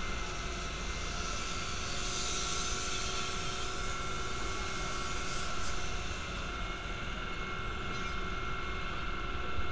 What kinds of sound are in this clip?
unidentified powered saw